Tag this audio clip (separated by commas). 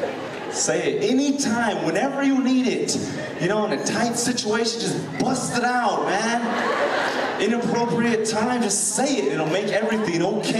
Speech